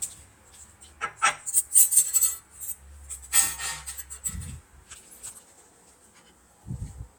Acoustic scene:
kitchen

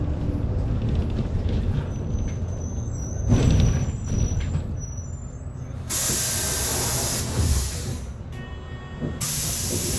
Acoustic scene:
bus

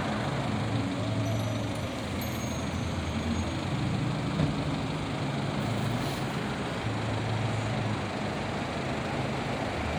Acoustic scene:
street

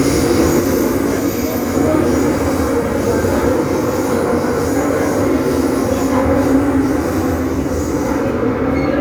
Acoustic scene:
subway train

